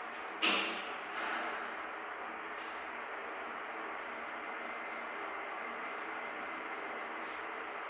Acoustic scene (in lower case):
elevator